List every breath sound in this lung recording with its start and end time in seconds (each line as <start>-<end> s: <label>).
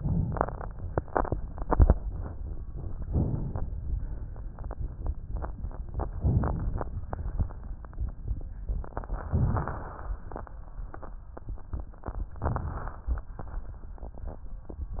3.01-3.84 s: inhalation
3.83-4.74 s: exhalation
6.16-7.11 s: inhalation
7.09-8.05 s: exhalation
9.29-10.08 s: inhalation
12.31-13.06 s: inhalation
13.05-13.83 s: exhalation